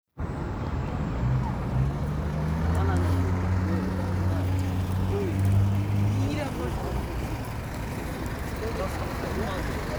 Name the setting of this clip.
street